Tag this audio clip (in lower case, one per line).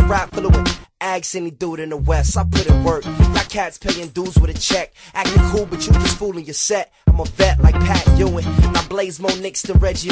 music